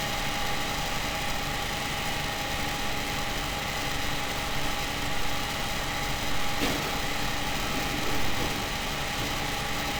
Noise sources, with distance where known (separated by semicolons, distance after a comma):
unidentified impact machinery, near